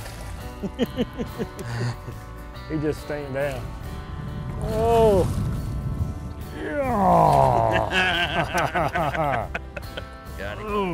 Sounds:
music
speech

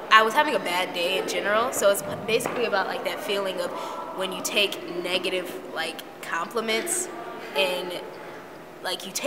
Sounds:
speech

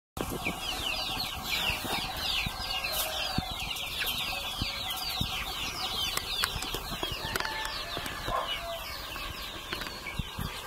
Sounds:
rooster
bird
fowl
livestock
animal

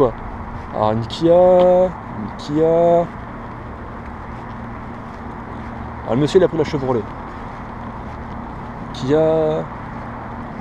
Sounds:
speech
vehicle

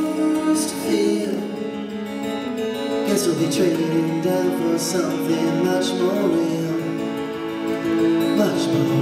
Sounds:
electric piano
keyboard (musical)
piano

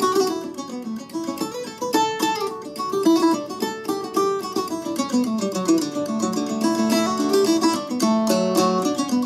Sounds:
mandolin
music

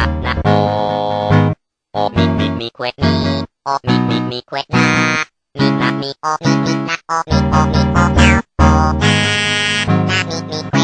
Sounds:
music

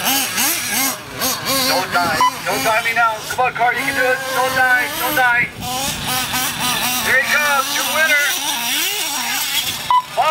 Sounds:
speech

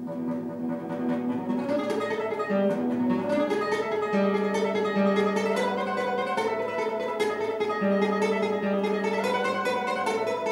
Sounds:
musical instrument
guitar
music

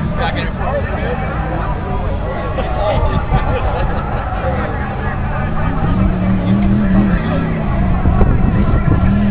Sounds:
vehicle
speech

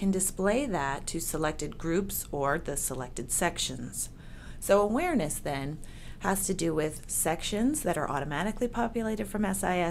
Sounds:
speech

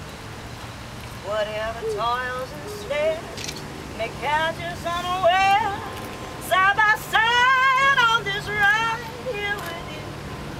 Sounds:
female singing

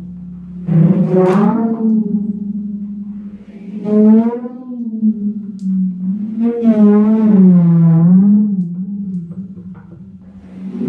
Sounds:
playing timpani

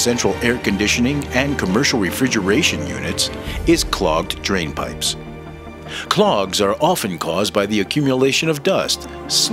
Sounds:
music
speech

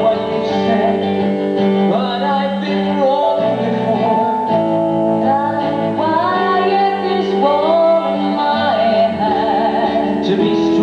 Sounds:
music

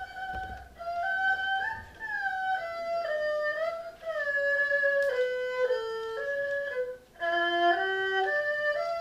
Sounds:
playing erhu

